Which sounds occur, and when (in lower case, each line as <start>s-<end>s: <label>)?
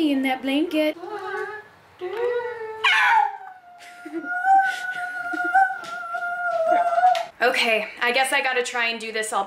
0.0s-1.6s: woman speaking
0.0s-9.4s: mechanisms
1.9s-2.8s: woman speaking
2.8s-3.4s: bark
3.3s-7.3s: howl
3.8s-5.0s: laughter
5.2s-5.8s: laughter
5.8s-6.1s: generic impact sounds
6.5s-7.3s: generic impact sounds
7.4s-9.4s: woman speaking